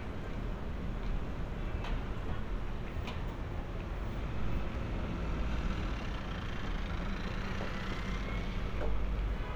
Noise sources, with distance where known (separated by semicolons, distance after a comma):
medium-sounding engine